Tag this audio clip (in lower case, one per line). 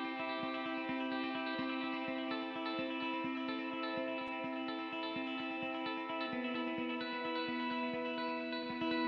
music